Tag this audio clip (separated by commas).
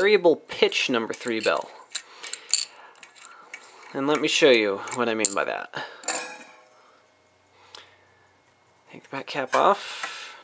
Speech